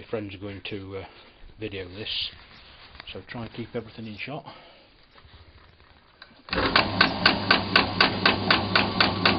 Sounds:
speech

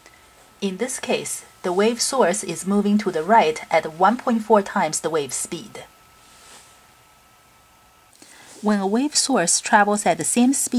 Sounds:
speech

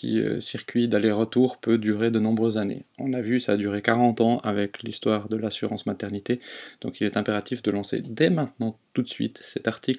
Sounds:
speech

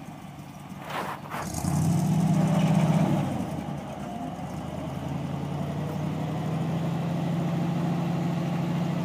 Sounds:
vehicle
truck

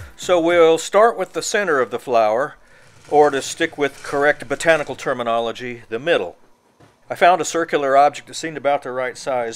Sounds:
speech

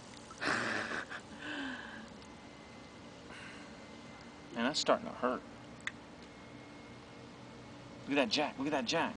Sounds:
speech

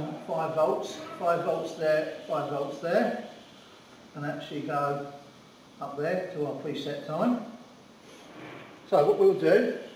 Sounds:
speech

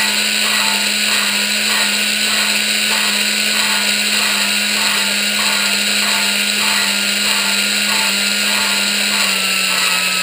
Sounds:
power tool

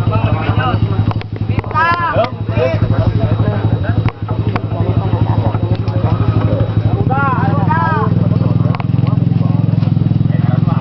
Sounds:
speech

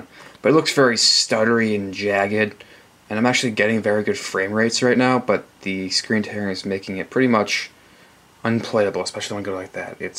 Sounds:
speech

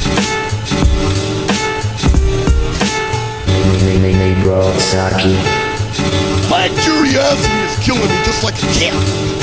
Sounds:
music

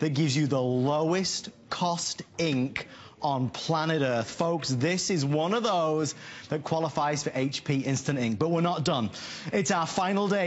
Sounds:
speech

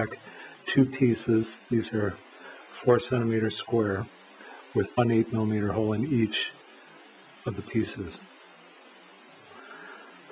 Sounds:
speech

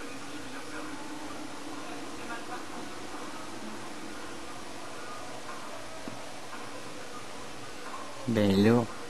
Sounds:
speech

